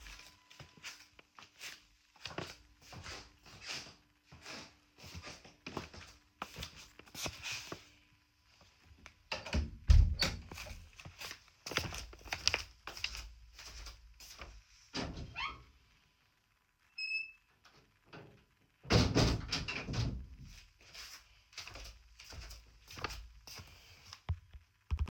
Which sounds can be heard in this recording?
footsteps, window, door